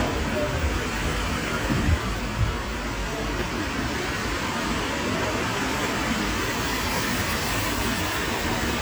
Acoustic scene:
street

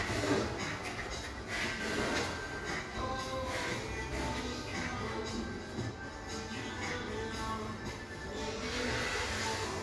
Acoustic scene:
cafe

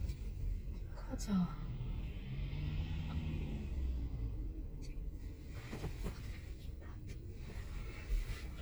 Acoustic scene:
car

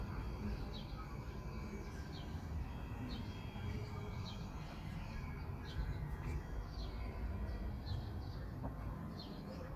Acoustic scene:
park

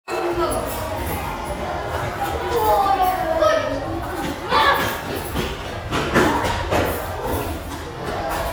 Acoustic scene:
restaurant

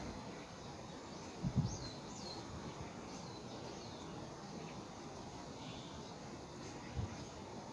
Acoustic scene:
park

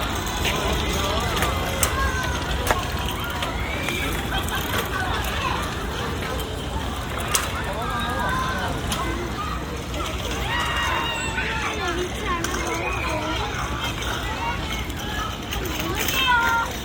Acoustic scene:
park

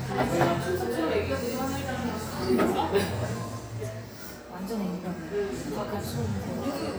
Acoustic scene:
cafe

